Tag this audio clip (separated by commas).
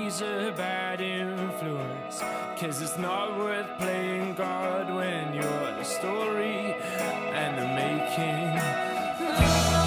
Music